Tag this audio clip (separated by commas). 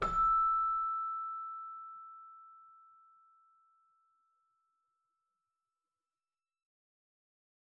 Musical instrument, Keyboard (musical), Music